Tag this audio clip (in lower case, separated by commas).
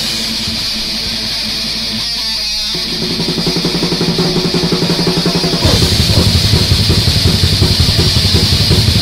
music